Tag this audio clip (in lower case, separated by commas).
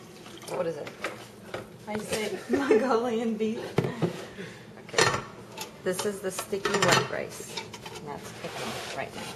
speech